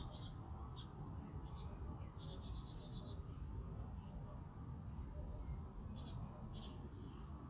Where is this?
in a park